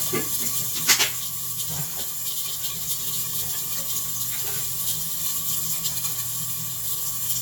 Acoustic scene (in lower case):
kitchen